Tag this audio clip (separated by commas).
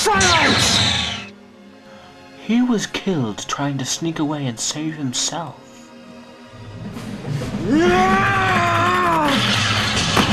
Music, Speech